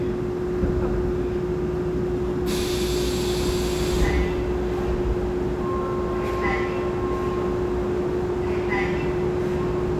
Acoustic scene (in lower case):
subway train